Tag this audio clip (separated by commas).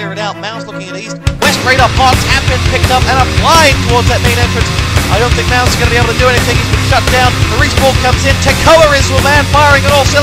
Speech, Music